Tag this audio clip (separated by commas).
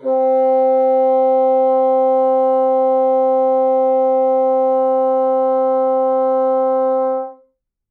Music, Wind instrument, Musical instrument